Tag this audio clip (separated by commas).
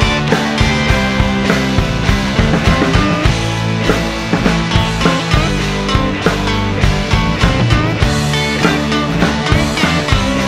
Grunge